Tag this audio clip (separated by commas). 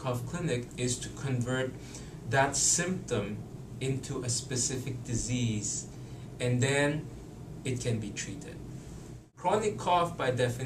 Speech